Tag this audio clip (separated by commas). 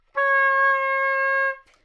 woodwind instrument, Music, Musical instrument